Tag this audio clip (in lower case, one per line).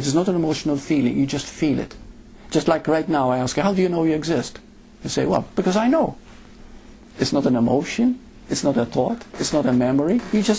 inside a small room
speech